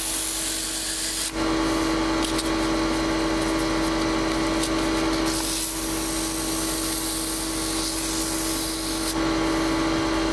A compressor sound with grinding and whirring